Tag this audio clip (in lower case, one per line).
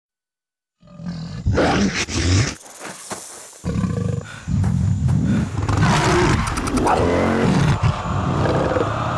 vehicle
motorcycle